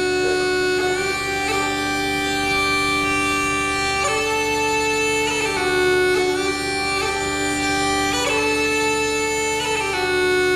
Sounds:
music

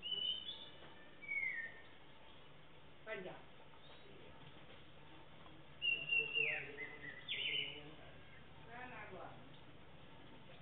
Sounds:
speech

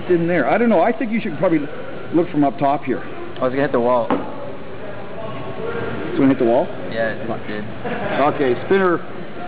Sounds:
music, speech

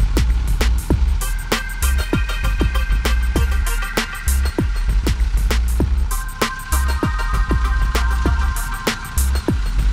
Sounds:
truck, vehicle, music

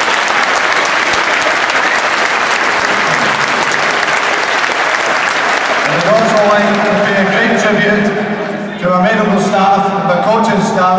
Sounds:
monologue, speech, man speaking

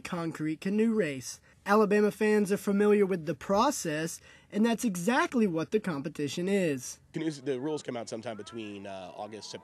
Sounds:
speech

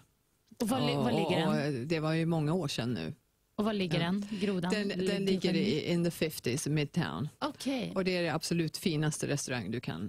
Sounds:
speech

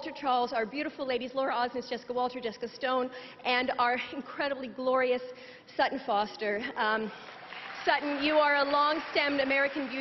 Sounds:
narration, speech, woman speaking

